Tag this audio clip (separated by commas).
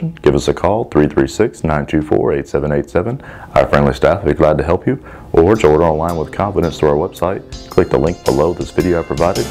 Music, Speech